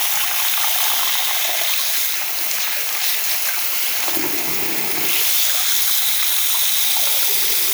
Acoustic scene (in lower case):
restroom